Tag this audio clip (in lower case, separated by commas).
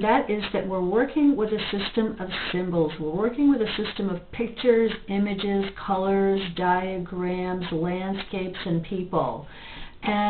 speech